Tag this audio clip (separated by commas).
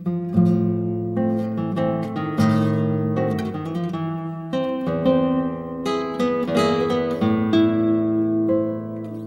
Musical instrument, Plucked string instrument, Acoustic guitar, Guitar, Strum, Music